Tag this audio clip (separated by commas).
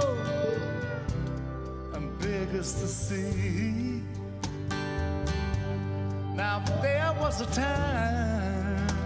Music